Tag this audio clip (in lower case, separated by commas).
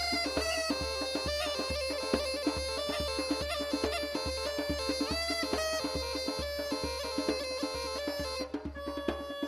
music